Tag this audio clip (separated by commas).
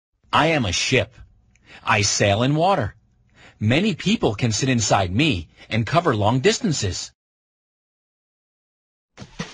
Speech